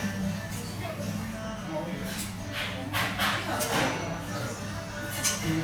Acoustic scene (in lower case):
restaurant